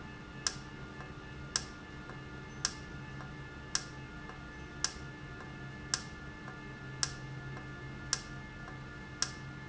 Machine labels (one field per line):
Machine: valve